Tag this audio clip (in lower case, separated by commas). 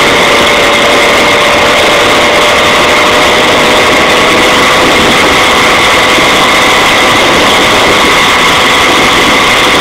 medium engine (mid frequency), vehicle, engine